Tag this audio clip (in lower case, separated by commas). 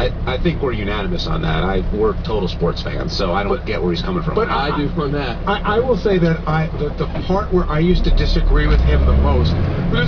vehicle, speech, truck